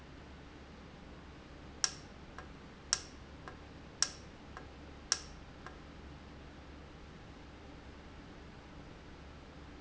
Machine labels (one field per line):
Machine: valve